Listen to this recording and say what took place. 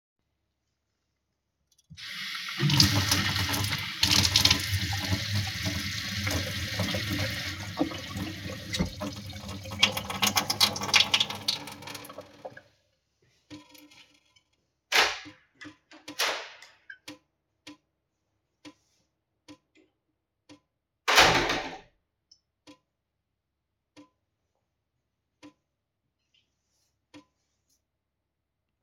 I placed the phone on the table, turned on the water for a few seconds, turned it off, and then opened and closed the door.